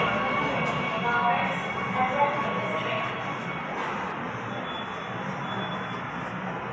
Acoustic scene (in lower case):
subway station